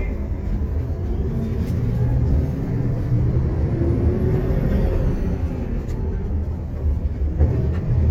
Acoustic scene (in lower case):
bus